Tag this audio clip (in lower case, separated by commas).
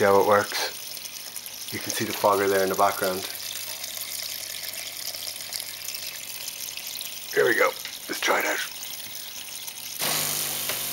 speech